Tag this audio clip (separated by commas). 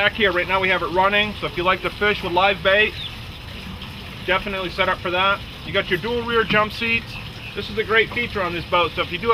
Speech